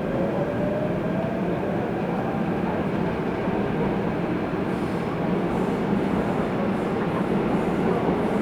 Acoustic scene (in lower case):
subway train